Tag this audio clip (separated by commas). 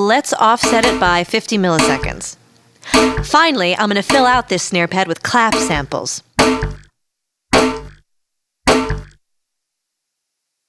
Music, Speech